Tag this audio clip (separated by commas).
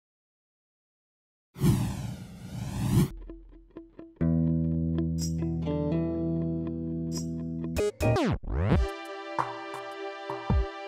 Bass guitar, Music